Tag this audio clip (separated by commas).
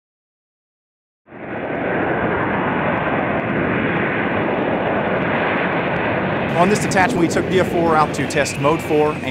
Speech, Fixed-wing aircraft, Aircraft, Vehicle